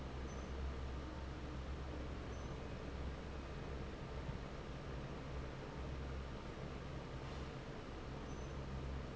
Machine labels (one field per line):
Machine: fan